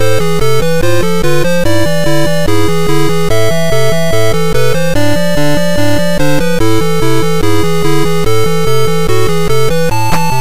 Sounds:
Music

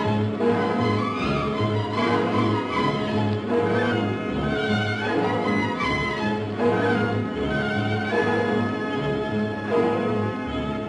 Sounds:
Music, Orchestra

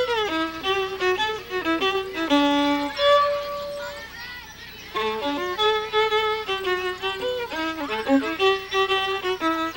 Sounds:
Speech, fiddle, Music, Musical instrument

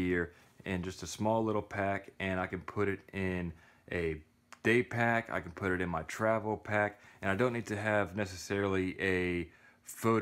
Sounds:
Speech

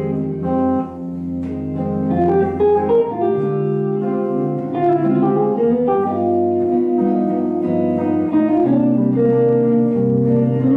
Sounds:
Guitar, Music, Strum, Plucked string instrument, Jazz, Musical instrument, Bass guitar

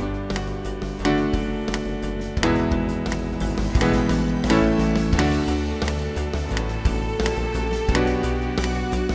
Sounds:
Plucked string instrument, Guitar, Music, Musical instrument

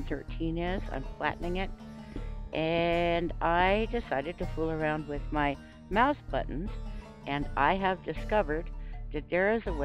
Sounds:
Music, Speech

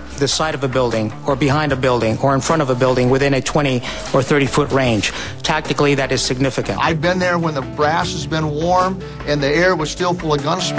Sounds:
Music, Speech

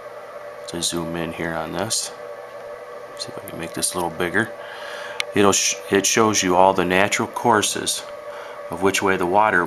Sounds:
Speech

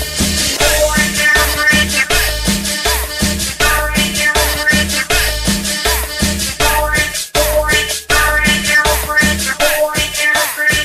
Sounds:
Music

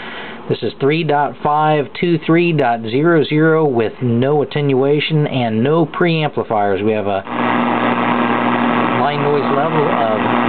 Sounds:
Speech

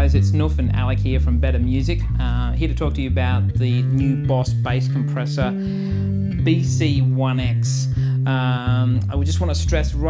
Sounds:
Speech, Music

